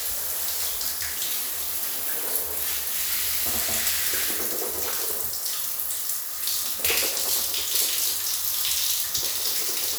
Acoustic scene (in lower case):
restroom